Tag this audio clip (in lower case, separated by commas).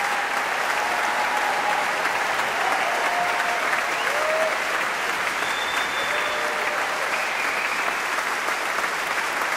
people clapping, applause